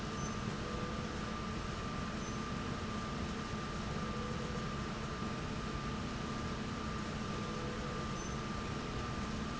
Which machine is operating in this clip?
slide rail